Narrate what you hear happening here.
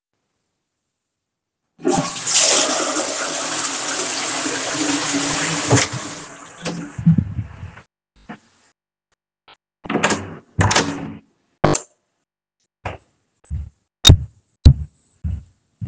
I flushed the toilet first. Then I opened and closed the door and turned off the light. After that, I walked away from the bathroom.